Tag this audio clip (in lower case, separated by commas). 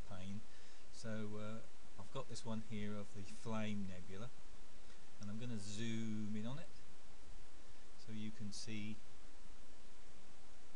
speech